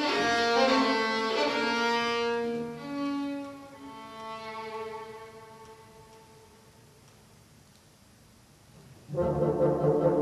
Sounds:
Musical instrument, Music, Violin

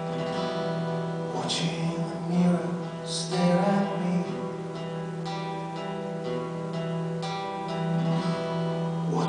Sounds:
Musical instrument, Music

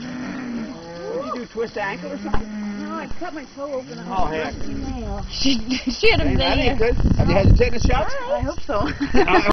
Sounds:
Speech, Animal

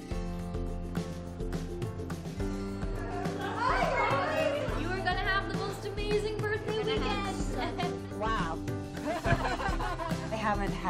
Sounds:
Speech, Music

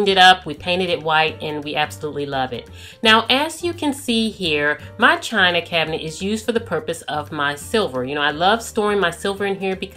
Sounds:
Music, Speech

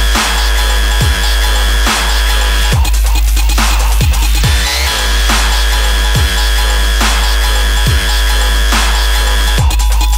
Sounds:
Dubstep, Music, Electronic music

